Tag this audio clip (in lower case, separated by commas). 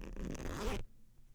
zipper (clothing), domestic sounds